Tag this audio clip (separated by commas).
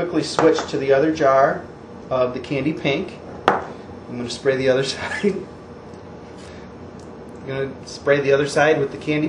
Speech